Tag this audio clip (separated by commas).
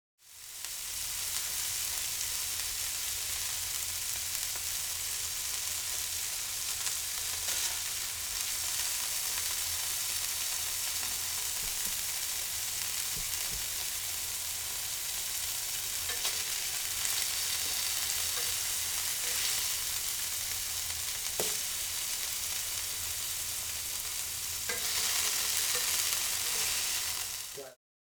Domestic sounds, Frying (food)